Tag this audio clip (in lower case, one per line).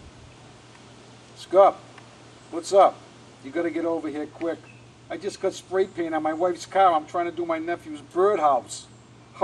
speech